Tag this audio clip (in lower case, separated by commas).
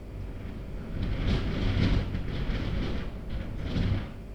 wind